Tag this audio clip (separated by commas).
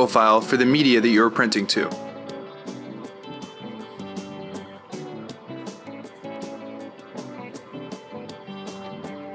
Speech, Music